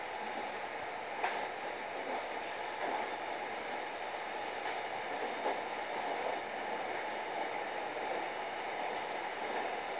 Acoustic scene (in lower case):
subway train